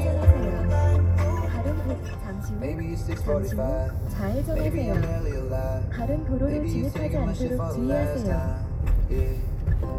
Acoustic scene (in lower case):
car